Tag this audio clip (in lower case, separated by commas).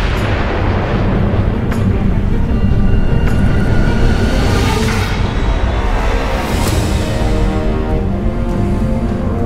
music, soundtrack music